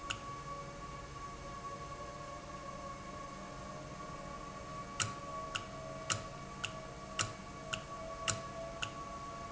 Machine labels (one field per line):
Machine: valve